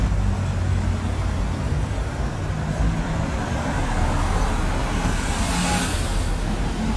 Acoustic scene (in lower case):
street